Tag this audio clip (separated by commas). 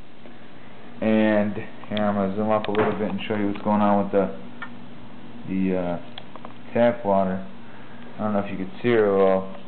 Speech